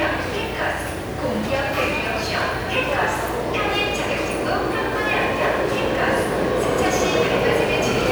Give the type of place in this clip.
subway station